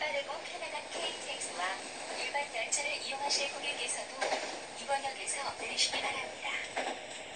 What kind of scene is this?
subway train